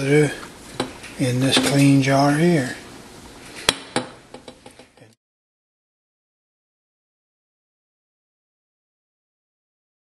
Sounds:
dishes, pots and pans

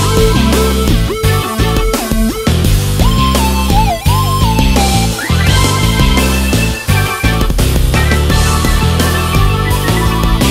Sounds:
music, musical instrument, synthesizer, keyboard (musical)

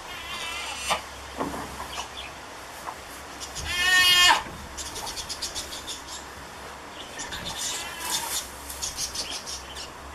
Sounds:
animal, goat, livestock

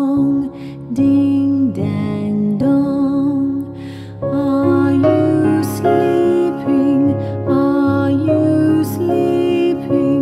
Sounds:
music, lullaby

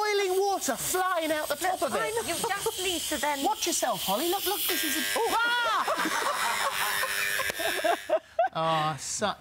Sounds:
speech, inside a small room

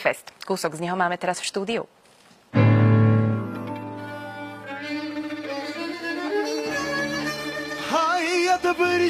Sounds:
speech, bowed string instrument, music, singing

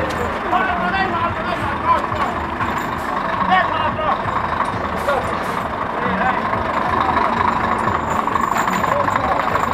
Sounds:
speech, music, vehicle, truck

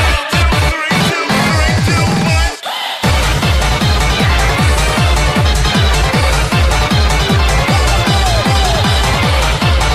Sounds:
music

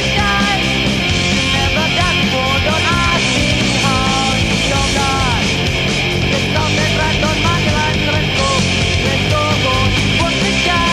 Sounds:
music

